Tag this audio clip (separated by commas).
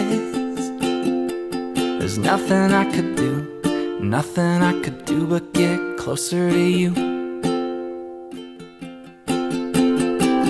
Tender music, Music